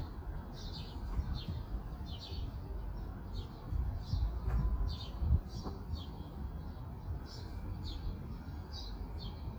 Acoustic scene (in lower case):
park